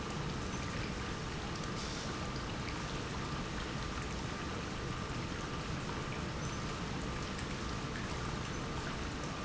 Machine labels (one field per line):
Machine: pump